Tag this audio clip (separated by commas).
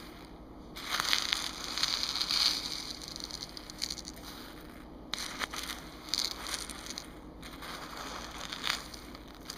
Scratching (performance technique)